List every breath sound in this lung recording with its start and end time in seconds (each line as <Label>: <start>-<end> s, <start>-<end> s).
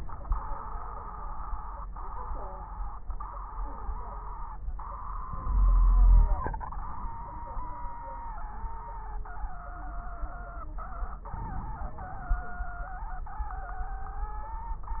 Inhalation: 5.27-6.38 s, 11.32-12.45 s
Wheeze: 5.46-6.38 s
Crackles: 11.32-12.45 s